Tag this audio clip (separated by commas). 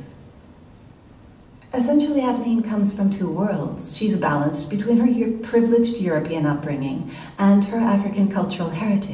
Speech